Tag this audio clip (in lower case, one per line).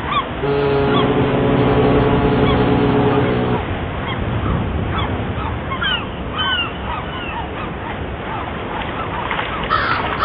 vehicle